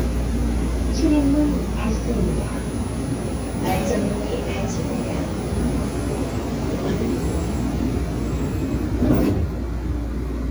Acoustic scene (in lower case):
subway train